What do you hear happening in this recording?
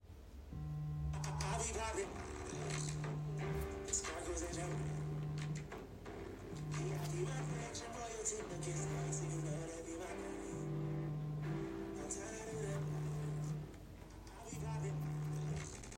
My phone started ringing while the phone was placed in the room, and I walked toward it after hearing it.